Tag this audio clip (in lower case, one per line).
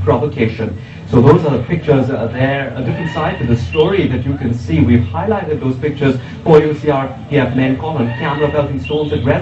speech